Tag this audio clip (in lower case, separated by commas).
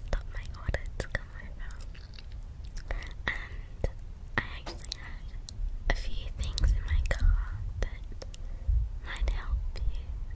speech